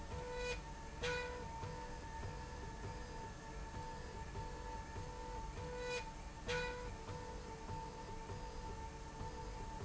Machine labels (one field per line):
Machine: slide rail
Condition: normal